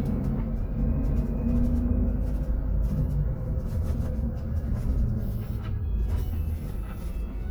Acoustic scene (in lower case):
bus